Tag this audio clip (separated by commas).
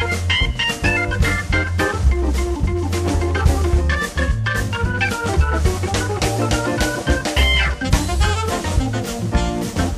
Organ, Hammond organ